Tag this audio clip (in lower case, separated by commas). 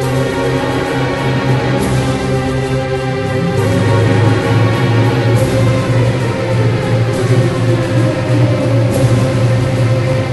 music